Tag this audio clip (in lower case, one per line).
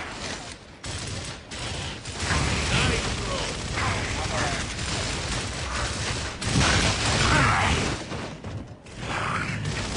speech